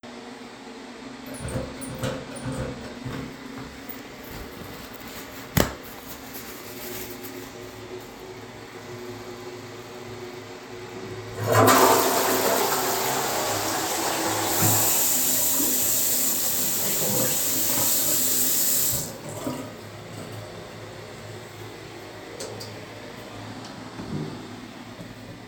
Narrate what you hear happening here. In the toilet I took some toilet paper, crumpled it up and threw it into the toilet. Then I flushed, washed my hands and turned off the light